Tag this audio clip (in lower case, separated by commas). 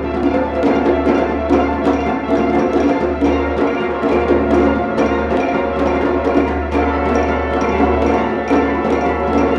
orchestra, music